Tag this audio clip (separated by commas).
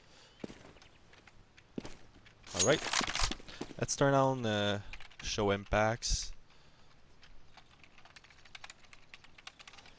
Speech